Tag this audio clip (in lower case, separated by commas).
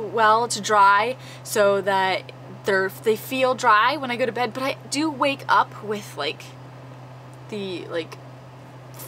speech, inside a small room